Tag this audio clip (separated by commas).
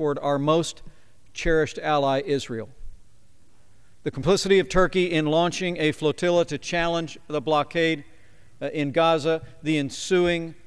Speech